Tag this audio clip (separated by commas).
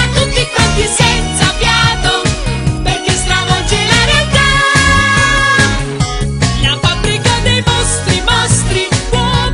Music